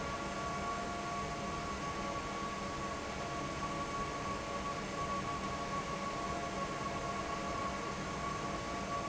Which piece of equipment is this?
fan